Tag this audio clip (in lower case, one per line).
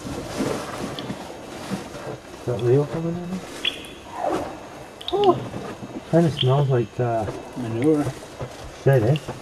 speech